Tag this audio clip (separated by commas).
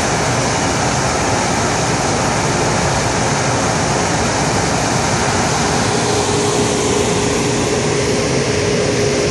Car, outside, rural or natural, Vehicle